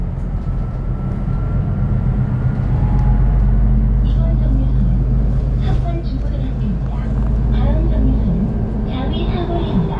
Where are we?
on a bus